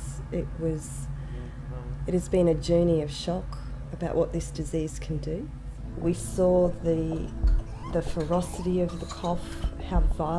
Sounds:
Speech, Music

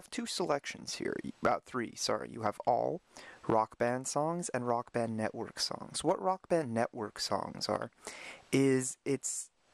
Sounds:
Speech

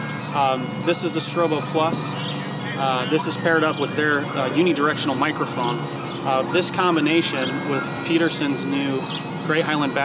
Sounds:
Wind instrument, Bagpipes

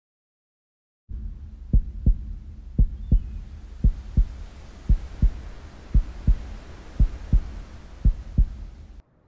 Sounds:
Heart murmur

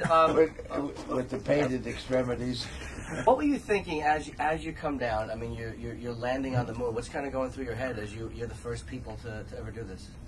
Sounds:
Speech

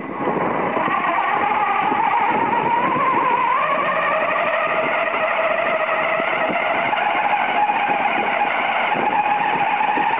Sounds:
Vehicle

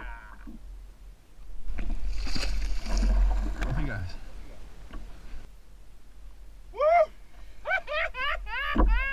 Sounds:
Speech, Boat

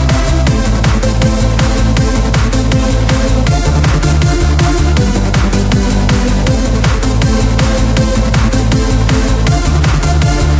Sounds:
Techno, Music

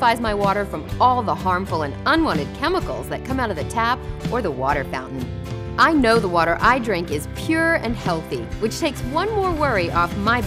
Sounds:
Speech, Music

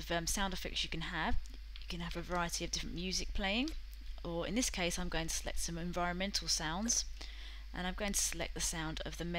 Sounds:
Speech

